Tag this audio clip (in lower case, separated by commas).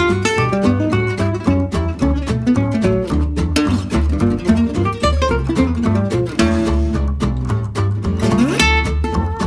strum, jazz, music, plucked string instrument, acoustic guitar, guitar, musical instrument